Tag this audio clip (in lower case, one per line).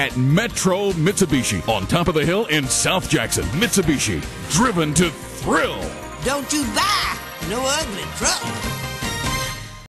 music
speech